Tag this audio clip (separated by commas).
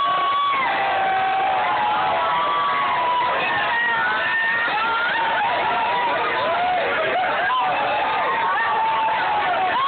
Crowd, Cheering